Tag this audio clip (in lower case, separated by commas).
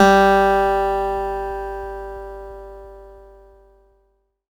acoustic guitar, plucked string instrument, music, guitar, musical instrument